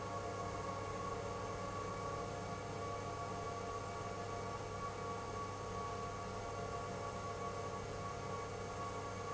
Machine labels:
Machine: pump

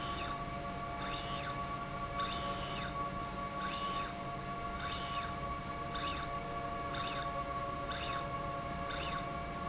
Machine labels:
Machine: slide rail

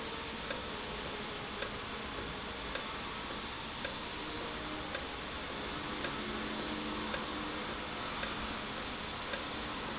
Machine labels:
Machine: valve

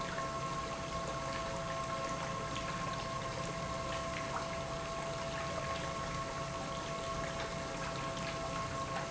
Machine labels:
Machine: pump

